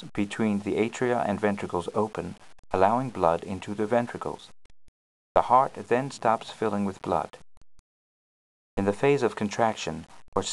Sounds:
Speech

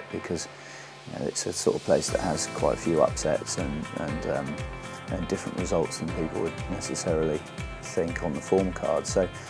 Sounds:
Music, Speech

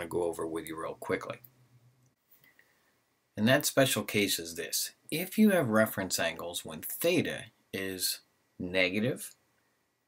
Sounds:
Speech

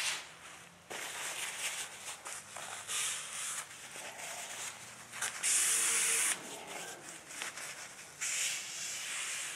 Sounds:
Rub

